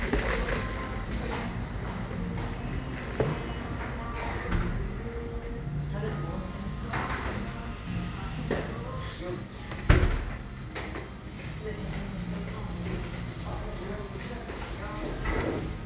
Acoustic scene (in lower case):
cafe